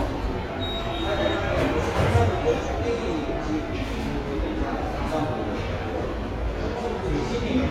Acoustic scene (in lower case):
subway station